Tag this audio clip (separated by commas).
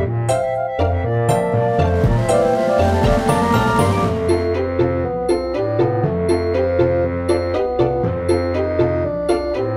Music